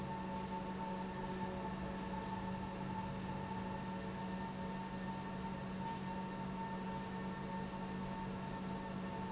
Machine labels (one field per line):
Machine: pump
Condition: normal